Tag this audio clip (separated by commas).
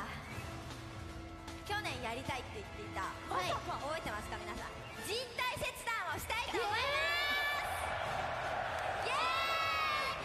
Speech, Music